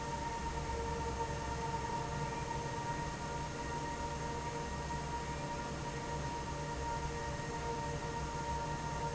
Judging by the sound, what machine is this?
fan